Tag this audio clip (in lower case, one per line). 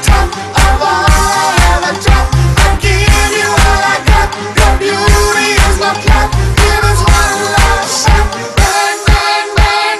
music